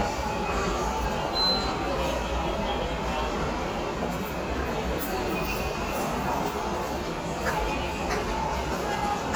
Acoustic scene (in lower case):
subway station